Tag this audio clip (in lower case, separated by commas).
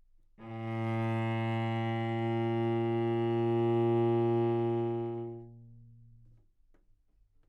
bowed string instrument, musical instrument, music